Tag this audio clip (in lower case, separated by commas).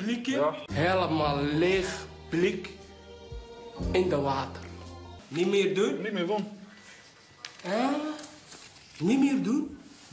speech, music